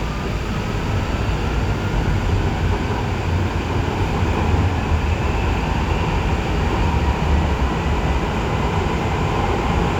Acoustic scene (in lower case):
subway train